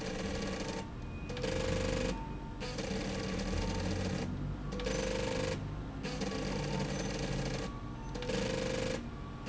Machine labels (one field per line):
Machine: slide rail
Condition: abnormal